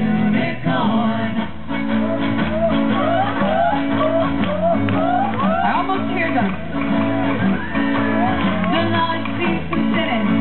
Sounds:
male singing, female singing, music

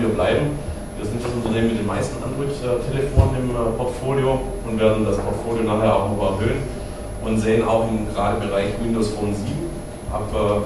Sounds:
speech

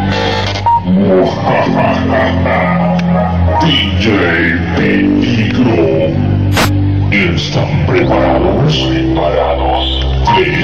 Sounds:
music, speech

